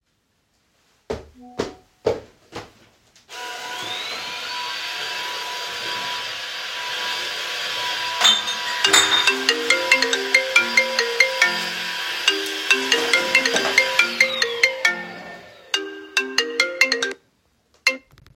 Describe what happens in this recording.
I moved inside the kitchen to the vacuum_cleaner when I heard a distant phone notification. I started cleaning with the vacuum_cleaner and accidentally broke some glass bottles.Then my phone started ringing so i stopped the cleaning.